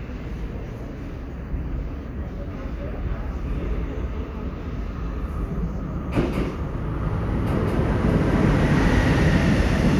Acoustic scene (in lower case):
subway station